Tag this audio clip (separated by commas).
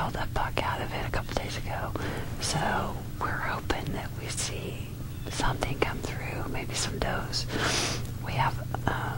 Speech